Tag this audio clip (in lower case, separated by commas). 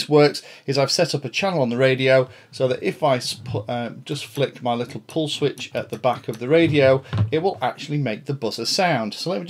speech